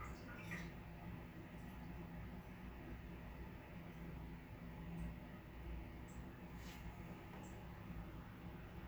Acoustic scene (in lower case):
restroom